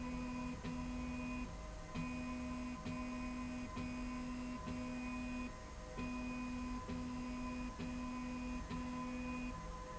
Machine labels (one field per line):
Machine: slide rail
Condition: normal